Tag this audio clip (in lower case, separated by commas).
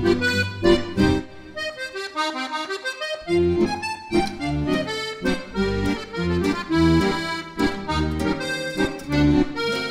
funny music, music